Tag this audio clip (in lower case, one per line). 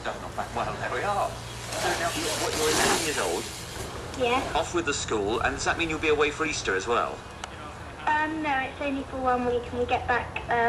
vehicle
bicycle
speech